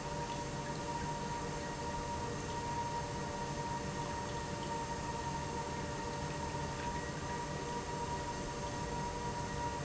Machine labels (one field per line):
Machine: pump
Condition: normal